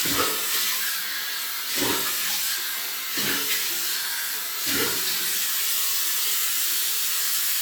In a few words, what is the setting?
restroom